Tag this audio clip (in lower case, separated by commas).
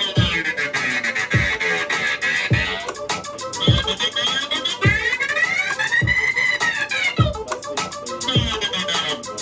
electronic music, scratching (performance technique), music, speech